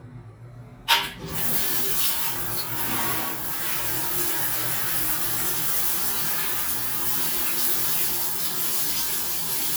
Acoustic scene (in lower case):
restroom